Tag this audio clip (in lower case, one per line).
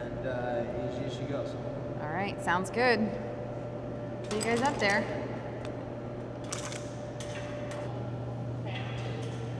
speech